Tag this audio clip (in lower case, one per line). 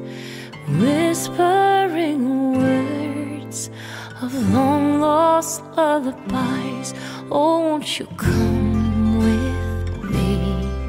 lullaby
music